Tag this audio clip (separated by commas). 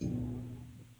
Thump